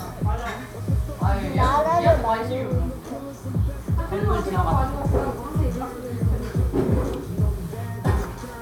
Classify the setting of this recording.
cafe